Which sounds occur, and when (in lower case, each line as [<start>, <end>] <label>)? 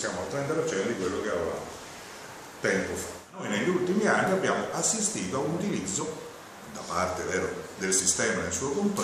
[0.00, 1.74] man speaking
[0.00, 9.03] mechanisms
[0.28, 0.35] tick
[0.63, 1.17] generic impact sounds
[1.46, 1.55] tick
[2.61, 3.21] man speaking
[3.30, 6.38] man speaking
[6.67, 9.03] man speaking